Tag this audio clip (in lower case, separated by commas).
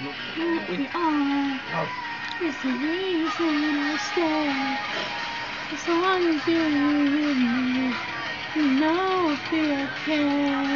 female singing, music